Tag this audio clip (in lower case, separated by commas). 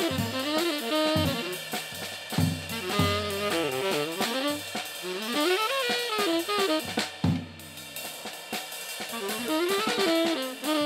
drum, music, drum kit